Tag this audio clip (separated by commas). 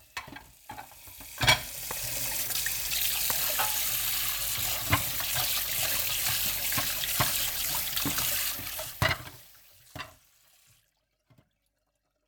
home sounds, faucet, Sink (filling or washing)